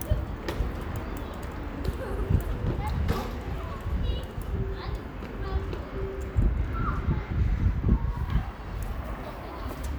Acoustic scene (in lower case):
residential area